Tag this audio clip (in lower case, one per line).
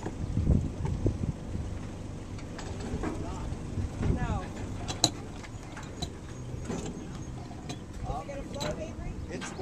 speech
boat